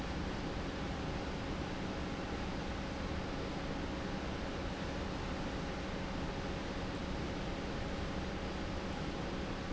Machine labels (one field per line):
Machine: pump